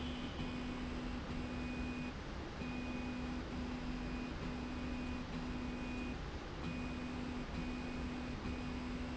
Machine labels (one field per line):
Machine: slide rail